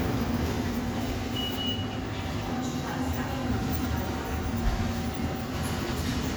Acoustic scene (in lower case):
subway station